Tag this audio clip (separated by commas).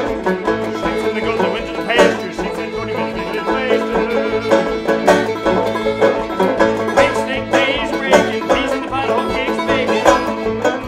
Music